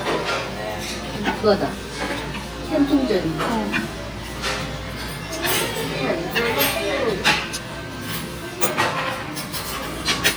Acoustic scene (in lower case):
restaurant